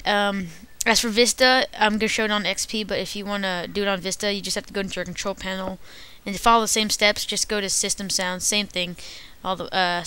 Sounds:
speech

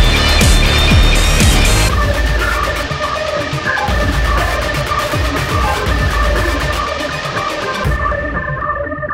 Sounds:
soundtrack music, music

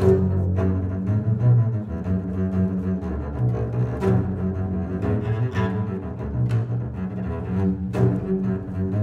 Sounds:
playing double bass

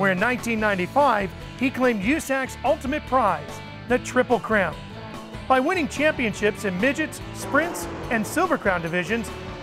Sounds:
speech, car passing by, music, motor vehicle (road)

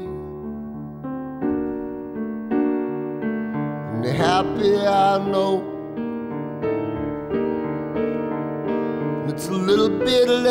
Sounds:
electric piano, music

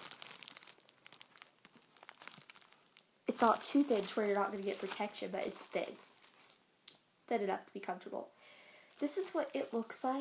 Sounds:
inside a small room, speech

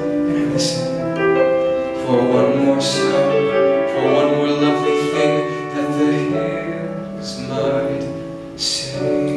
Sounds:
music

